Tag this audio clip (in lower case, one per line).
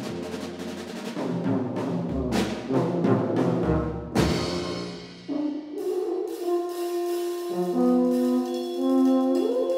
drum kit
musical instrument
bass drum
music
drum